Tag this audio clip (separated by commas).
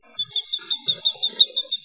Chirp, Wild animals, Animal, bird call, Bird